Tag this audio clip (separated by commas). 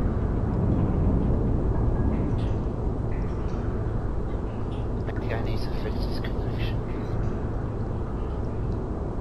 Speech